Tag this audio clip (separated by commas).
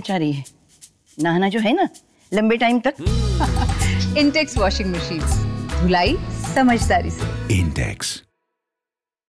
Speech, Music